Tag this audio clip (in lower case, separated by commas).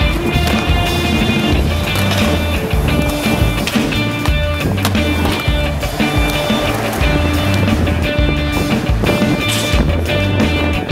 music, skateboard